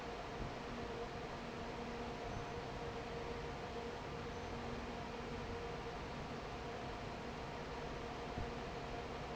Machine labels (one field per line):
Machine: fan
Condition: normal